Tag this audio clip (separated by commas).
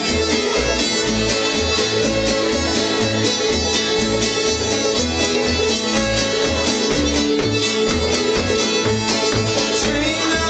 Music